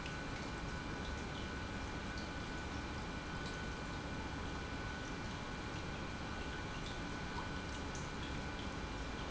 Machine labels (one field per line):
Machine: pump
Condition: normal